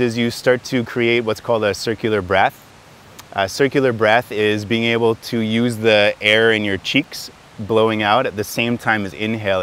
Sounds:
speech

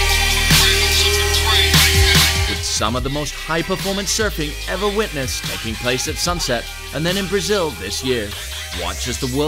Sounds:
music, speech

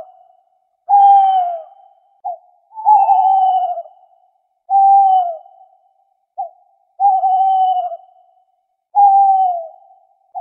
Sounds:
owl hooting

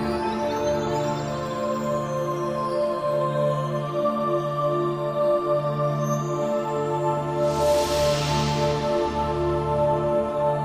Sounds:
music, video game music

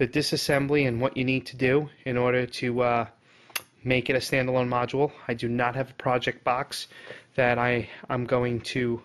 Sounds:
speech

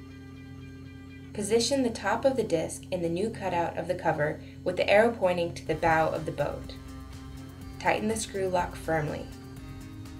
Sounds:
music, speech

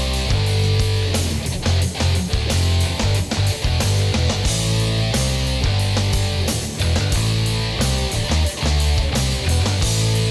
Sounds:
music

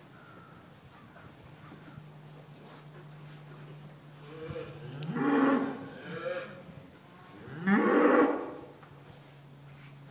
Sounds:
livestock, animal

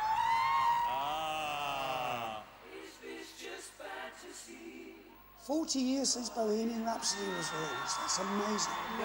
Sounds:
music, speech

